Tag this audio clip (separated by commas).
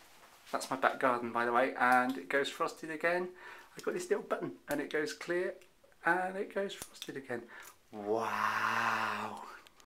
Speech